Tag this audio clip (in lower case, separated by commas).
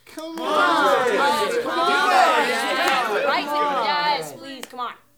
crowd, human group actions